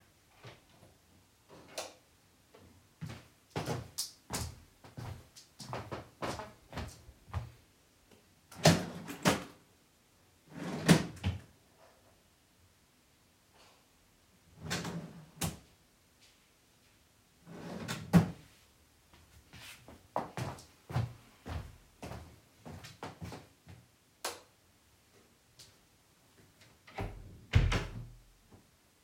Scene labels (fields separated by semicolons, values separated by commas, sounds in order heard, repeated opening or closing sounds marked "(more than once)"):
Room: living room; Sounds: light switch, footsteps, wardrobe or drawer (more than once), door